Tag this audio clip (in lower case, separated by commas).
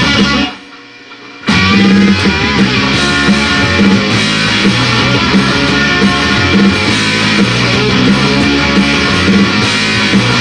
music, roll